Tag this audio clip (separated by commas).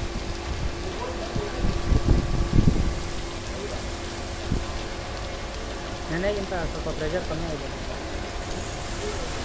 Speech